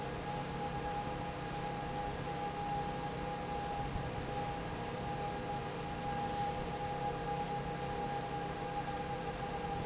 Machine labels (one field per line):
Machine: fan